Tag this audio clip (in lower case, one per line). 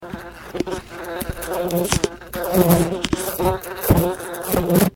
insect
wild animals
animal